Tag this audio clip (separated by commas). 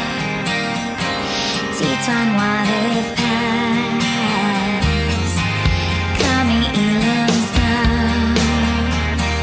Music